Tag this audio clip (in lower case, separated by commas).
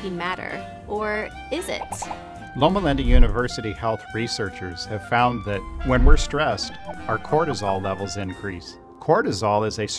speech, music